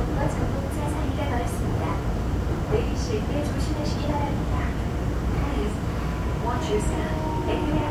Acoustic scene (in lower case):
subway train